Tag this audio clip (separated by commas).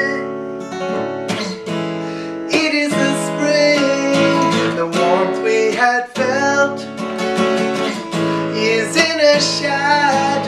Music, Male singing